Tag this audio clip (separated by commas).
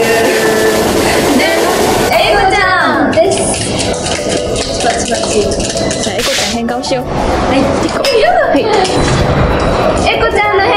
rope skipping